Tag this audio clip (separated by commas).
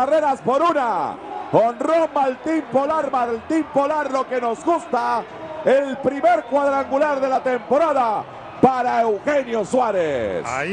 Speech